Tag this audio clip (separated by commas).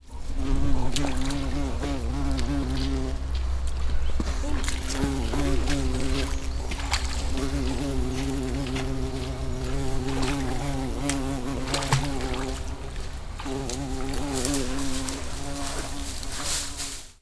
Insect, Animal, Wild animals